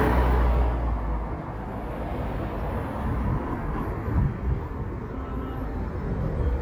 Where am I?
on a street